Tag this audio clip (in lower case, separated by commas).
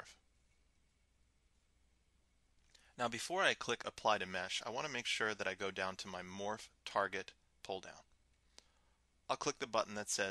speech